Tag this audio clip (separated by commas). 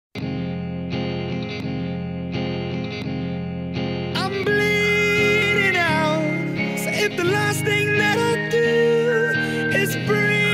Music, Musical instrument